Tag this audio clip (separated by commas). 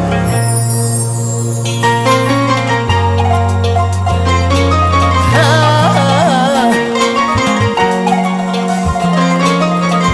Music